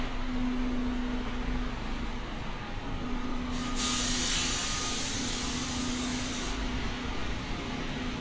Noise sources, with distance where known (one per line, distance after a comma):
large-sounding engine
unidentified alert signal